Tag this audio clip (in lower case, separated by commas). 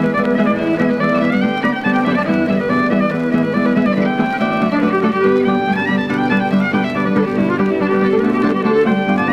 string section